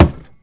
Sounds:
thud

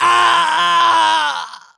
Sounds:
screaming
human voice

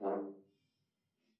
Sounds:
music
musical instrument
brass instrument

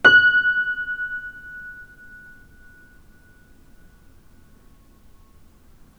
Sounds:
music
musical instrument
piano
keyboard (musical)

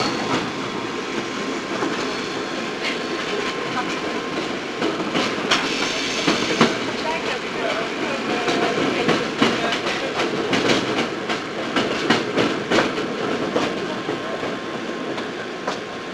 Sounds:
vehicle
train
rail transport

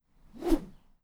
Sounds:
swish

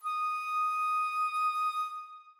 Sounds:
musical instrument
woodwind instrument
music

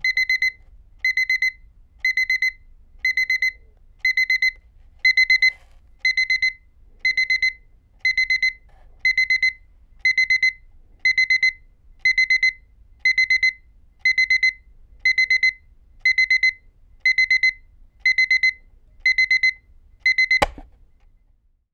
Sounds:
alarm

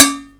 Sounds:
dishes, pots and pans
domestic sounds

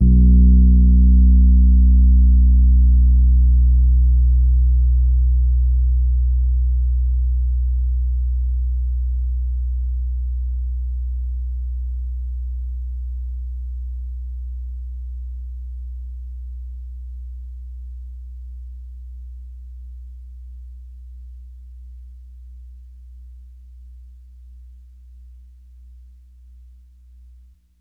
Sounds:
keyboard (musical)
music
musical instrument
piano

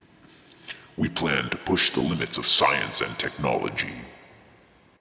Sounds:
speech
human voice

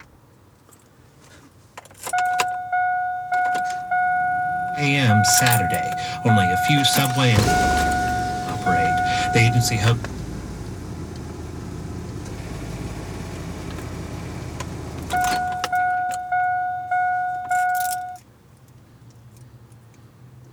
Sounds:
engine
engine starting

